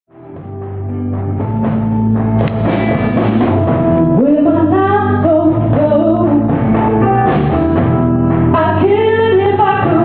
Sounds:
Music, Singing

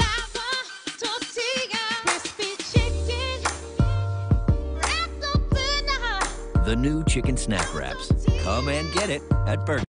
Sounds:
Music, Speech

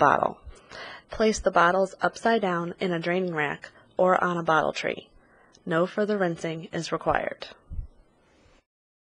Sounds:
Speech

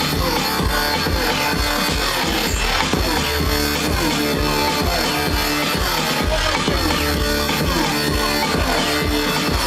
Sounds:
Speech, Music

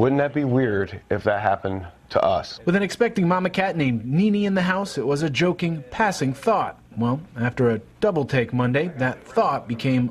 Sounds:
Speech

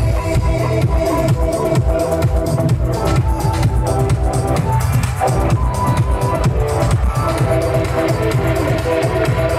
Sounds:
Rock and roll, Music

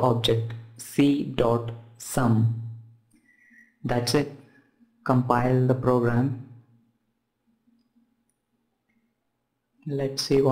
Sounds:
Speech, inside a small room

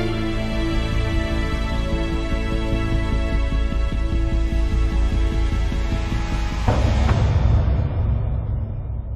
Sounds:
Music, Musical instrument, Violin

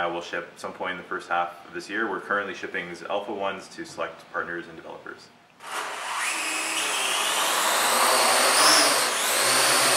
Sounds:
Speech

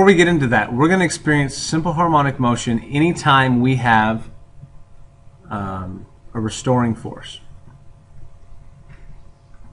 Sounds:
Speech

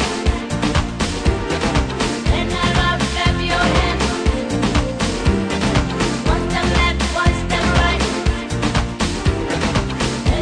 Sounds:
Music

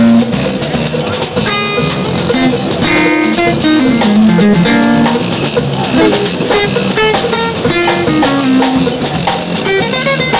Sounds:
Musical instrument, Guitar, Music, Acoustic guitar

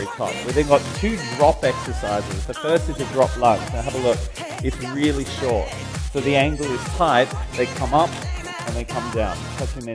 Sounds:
Speech, Music

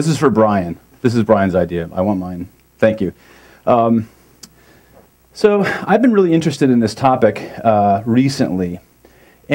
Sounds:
Speech

